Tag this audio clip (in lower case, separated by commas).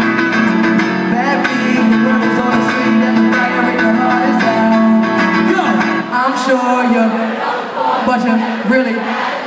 music, male singing